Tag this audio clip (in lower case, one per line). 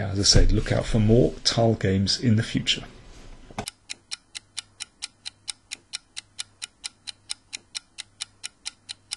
tick
speech
inside a small room